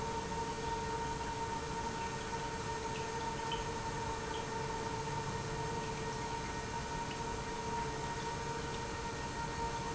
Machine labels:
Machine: pump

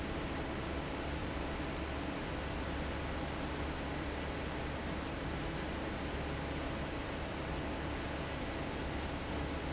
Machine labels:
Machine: fan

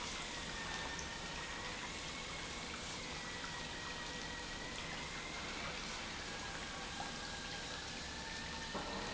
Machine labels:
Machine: pump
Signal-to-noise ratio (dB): 0 dB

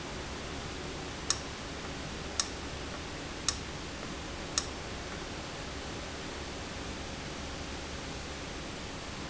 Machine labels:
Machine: valve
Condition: abnormal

